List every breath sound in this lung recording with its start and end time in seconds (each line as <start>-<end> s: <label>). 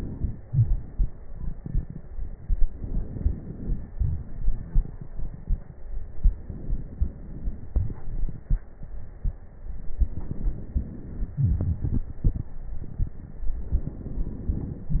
0.40-0.84 s: wheeze
0.40-2.61 s: exhalation
2.63-3.90 s: inhalation
2.63-3.90 s: crackles
3.93-6.41 s: exhalation
3.93-6.41 s: crackles
6.43-7.72 s: crackles
6.43-7.76 s: inhalation
7.76-9.98 s: exhalation
7.76-9.98 s: crackles
9.98-11.36 s: inhalation
10.00-11.32 s: crackles
11.36-13.60 s: exhalation
11.36-13.60 s: crackles
13.62-15.00 s: inhalation
13.62-15.00 s: crackles